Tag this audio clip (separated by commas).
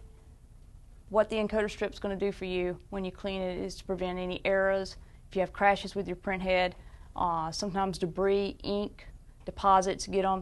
Speech